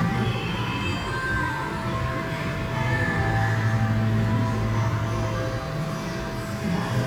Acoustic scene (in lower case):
cafe